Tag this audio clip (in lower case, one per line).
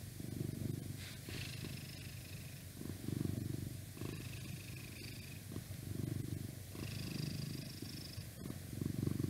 cat purring